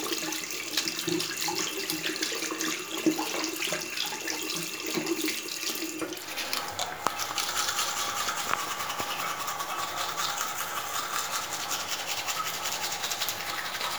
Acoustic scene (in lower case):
restroom